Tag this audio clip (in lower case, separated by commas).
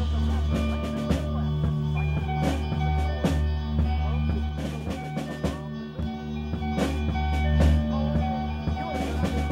speech, music